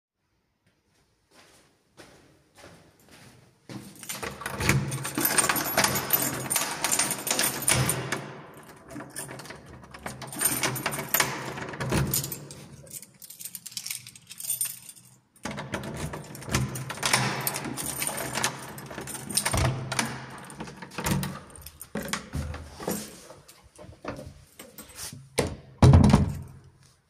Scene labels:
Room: hallway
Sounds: footsteps, keys, door (more than once)

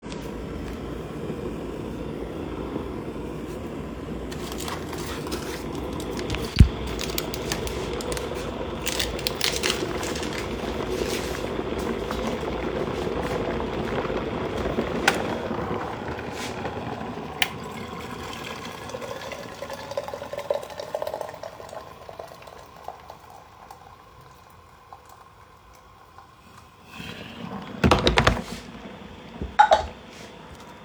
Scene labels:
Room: kitchen, living room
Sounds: coffee machine, running water, cutlery and dishes

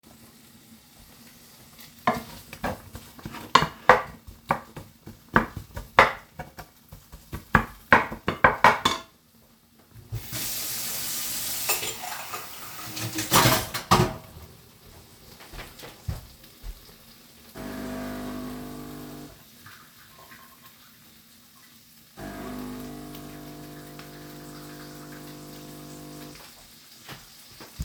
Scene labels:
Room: kitchen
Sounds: cutlery and dishes, running water, coffee machine

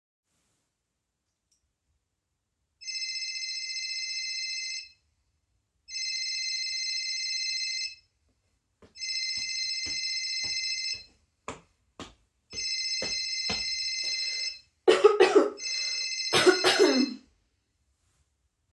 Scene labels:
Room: living room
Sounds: phone ringing, footsteps

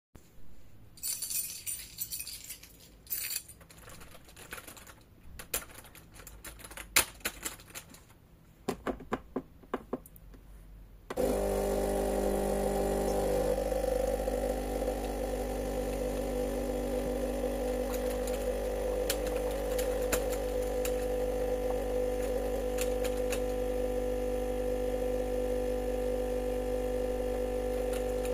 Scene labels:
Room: kitchen, office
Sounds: keys, keyboard typing, coffee machine

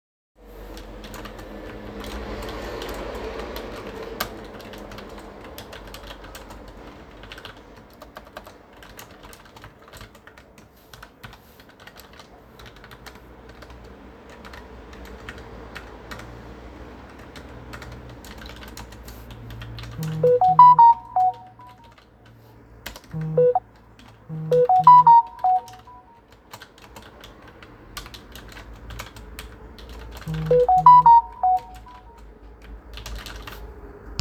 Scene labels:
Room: living room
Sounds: keyboard typing, phone ringing

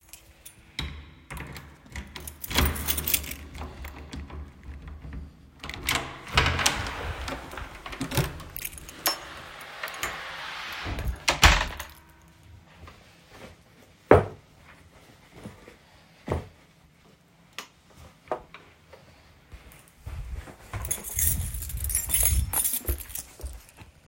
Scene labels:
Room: hallway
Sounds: door, keys, light switch, footsteps

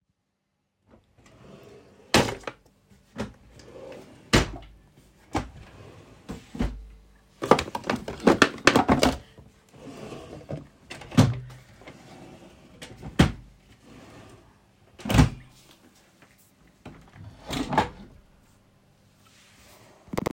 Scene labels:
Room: bedroom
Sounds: wardrobe or drawer (more than once), window (more than once)

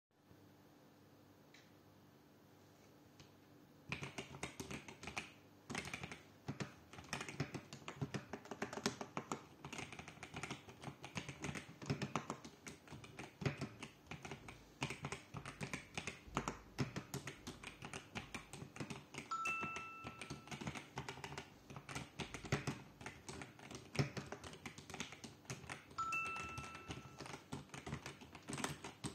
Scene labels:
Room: bedroom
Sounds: keyboard typing, phone ringing

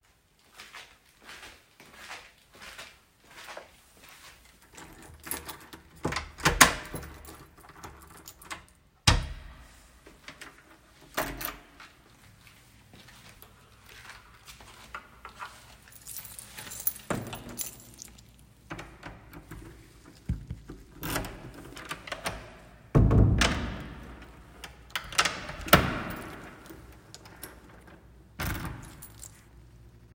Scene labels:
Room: hallway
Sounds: footsteps, door (more than once), keys

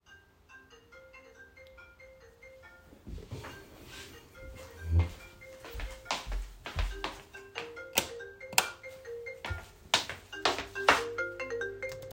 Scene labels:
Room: office, bedroom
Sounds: phone ringing, footsteps, light switch

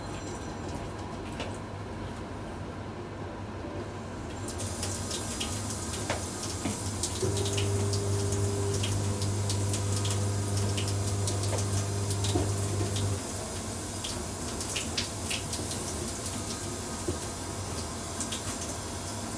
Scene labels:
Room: kitchen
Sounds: phone ringing, running water, microwave

